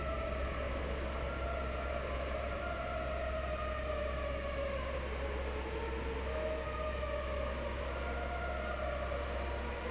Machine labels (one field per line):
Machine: fan